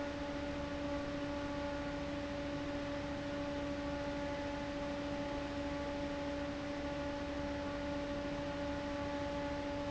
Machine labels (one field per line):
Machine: fan